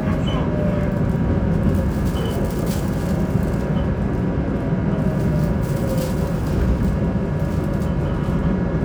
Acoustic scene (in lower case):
subway train